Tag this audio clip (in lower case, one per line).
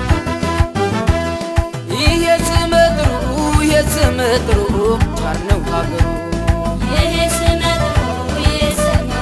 music